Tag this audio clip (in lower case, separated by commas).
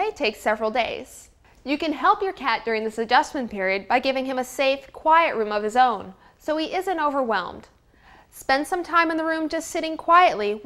speech